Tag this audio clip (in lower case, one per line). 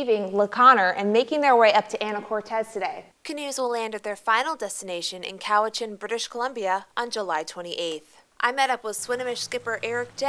speech